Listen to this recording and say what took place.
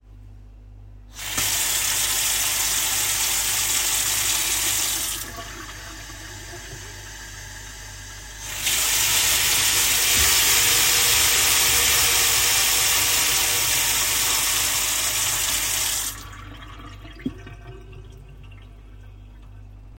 I turned on the water while washing cups or dishes, creating both water and dish sounds.